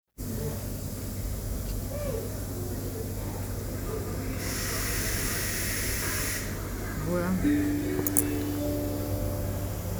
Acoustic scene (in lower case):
subway station